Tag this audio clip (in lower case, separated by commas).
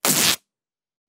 domestic sounds